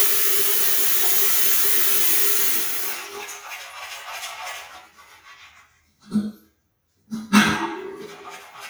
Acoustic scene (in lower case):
restroom